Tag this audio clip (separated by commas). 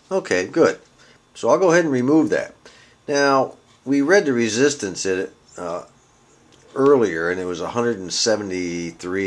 Speech